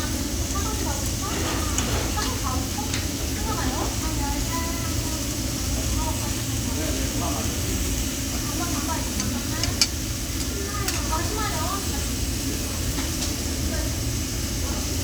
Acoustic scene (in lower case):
crowded indoor space